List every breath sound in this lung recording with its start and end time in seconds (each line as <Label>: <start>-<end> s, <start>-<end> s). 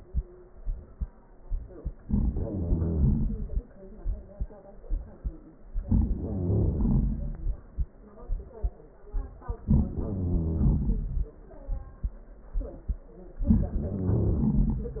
Wheeze: 2.08-3.58 s, 5.86-7.42 s, 9.71-11.30 s, 13.83-15.00 s